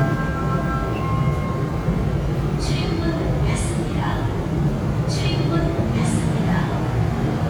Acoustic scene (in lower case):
subway train